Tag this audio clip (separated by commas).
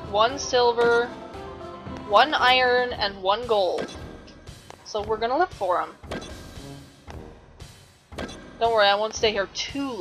Music, Speech